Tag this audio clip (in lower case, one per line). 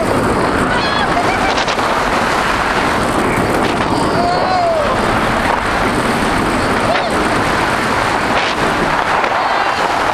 speech
outside, urban or man-made